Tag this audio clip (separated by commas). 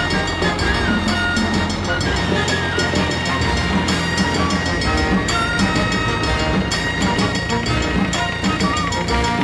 Music, Vehicle